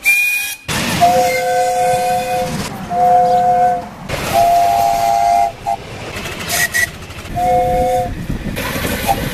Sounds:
train whistling

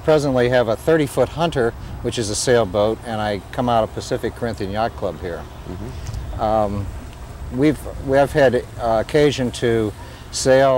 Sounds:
speech

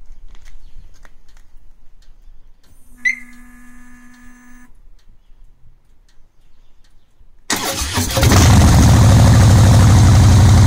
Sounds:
motorcycle, outside, rural or natural, vehicle

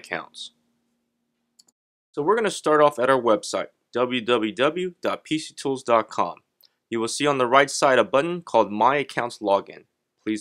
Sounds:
speech

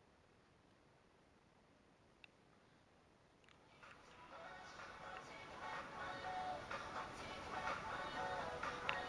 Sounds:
music

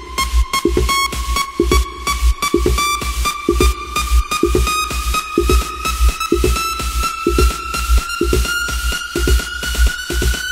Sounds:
electronic dance music, music, electronic music

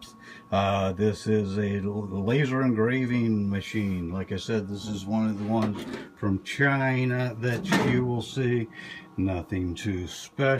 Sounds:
speech

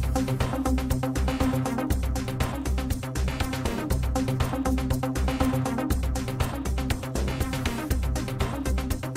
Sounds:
music

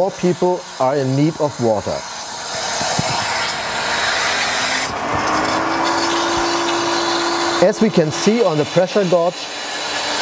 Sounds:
inside a small room, speech

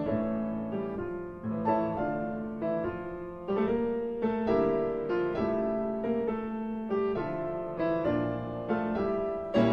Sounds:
musical instrument, music

